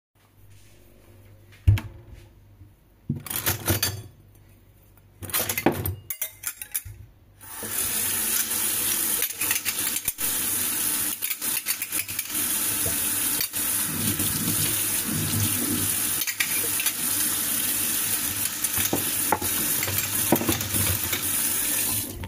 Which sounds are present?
wardrobe or drawer, cutlery and dishes, running water